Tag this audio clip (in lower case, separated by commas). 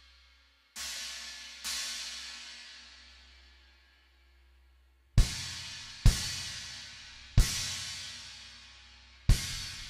music